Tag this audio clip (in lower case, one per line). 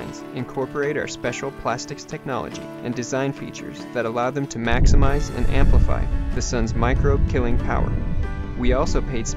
music
speech